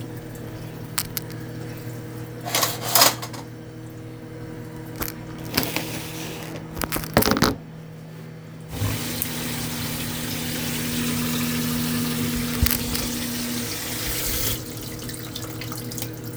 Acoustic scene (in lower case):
kitchen